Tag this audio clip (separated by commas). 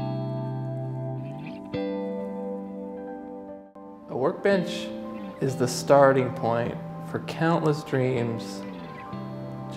planing timber